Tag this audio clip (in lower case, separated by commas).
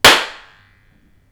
hands, clapping